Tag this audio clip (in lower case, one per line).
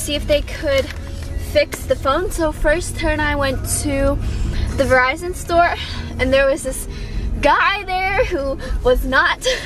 speech
music